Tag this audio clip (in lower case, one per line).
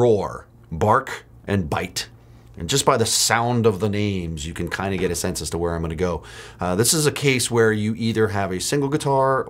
speech